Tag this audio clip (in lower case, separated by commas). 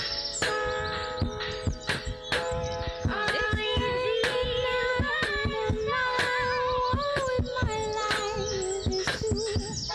music